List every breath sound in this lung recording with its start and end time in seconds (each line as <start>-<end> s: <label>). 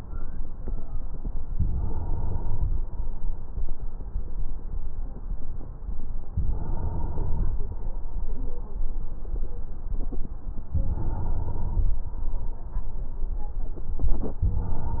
1.50-2.79 s: inhalation
6.32-7.61 s: inhalation
10.69-11.97 s: inhalation
14.41-15.00 s: inhalation